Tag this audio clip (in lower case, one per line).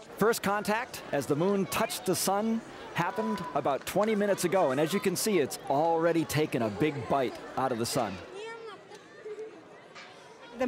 speech